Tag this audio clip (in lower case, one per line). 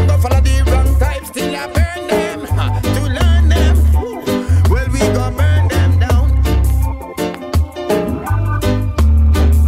reggae
music